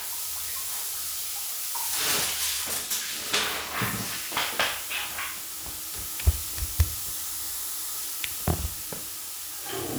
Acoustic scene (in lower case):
restroom